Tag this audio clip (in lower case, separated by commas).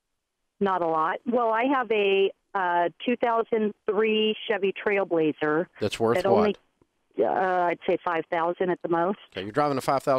speech